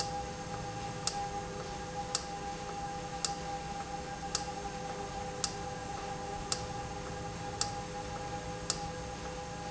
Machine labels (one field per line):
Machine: valve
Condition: normal